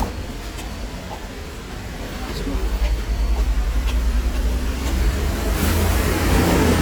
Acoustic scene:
street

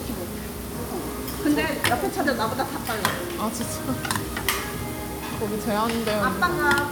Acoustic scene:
restaurant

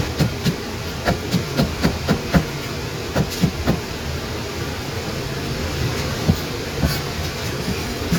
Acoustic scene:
kitchen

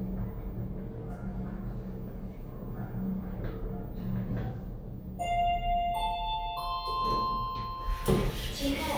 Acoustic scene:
elevator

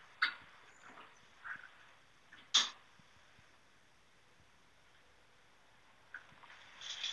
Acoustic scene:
elevator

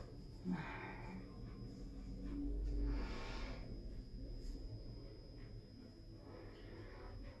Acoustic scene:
elevator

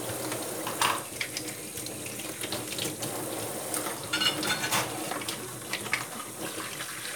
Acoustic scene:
kitchen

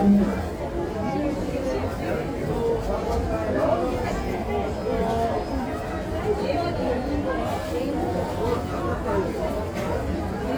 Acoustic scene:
crowded indoor space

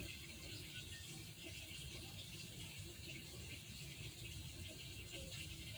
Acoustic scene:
park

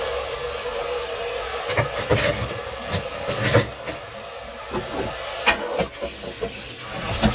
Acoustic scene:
kitchen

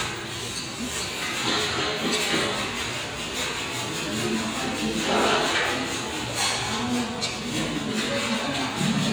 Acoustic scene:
restaurant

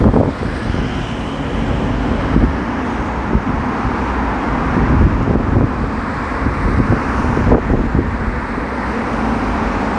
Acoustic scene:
street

